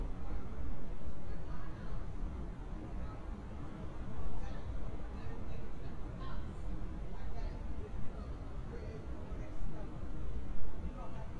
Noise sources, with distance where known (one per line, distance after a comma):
background noise